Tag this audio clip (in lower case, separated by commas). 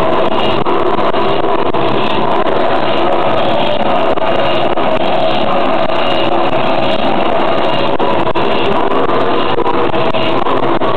heavy engine (low frequency), engine